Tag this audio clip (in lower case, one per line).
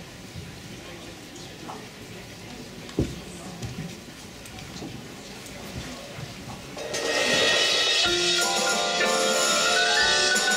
mallet percussion
glockenspiel
marimba